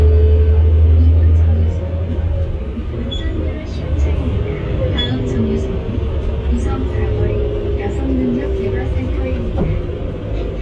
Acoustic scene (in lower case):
bus